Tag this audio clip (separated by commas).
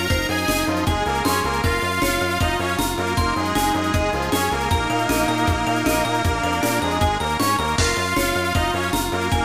Music